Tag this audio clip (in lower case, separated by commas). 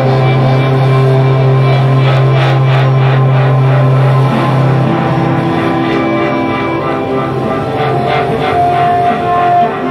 music